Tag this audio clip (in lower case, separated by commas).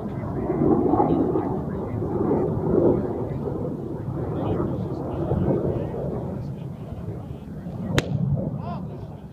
speech